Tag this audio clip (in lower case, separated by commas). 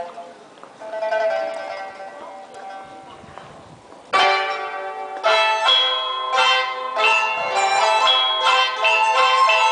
traditional music, music